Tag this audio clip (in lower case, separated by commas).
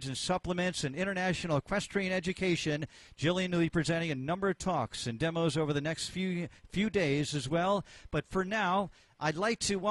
speech